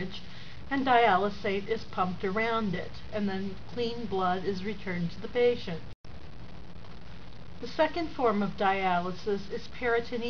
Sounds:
Speech

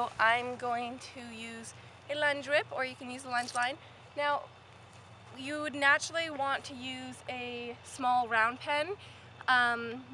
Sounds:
Speech

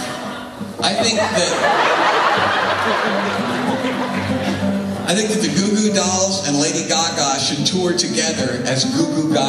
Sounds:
Speech, Music

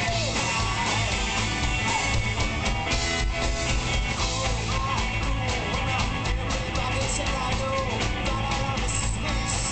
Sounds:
Burst, Music

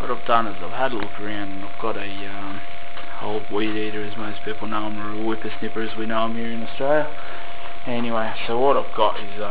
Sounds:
Speech

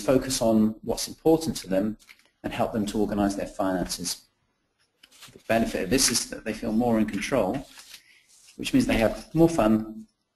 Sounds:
Speech

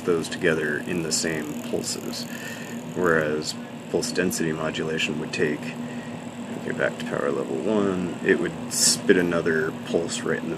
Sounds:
Speech

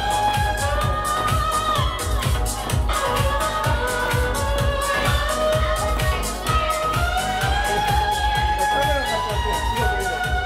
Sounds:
Violin, Speech, Music, Musical instrument

